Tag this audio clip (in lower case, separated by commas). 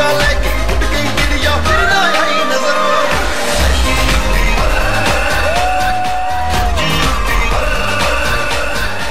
music, music of asia